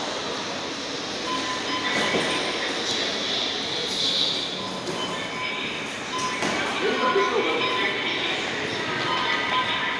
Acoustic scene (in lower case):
subway station